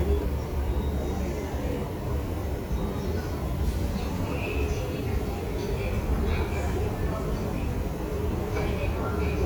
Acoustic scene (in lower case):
subway station